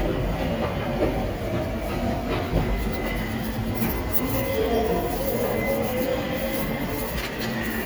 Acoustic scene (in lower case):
subway station